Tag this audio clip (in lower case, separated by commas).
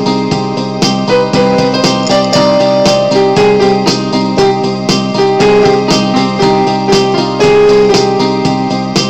music, harpsichord